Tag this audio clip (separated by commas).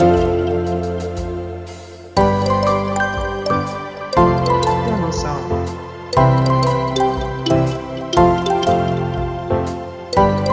Speech, Music